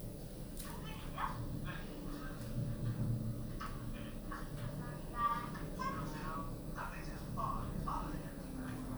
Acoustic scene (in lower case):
elevator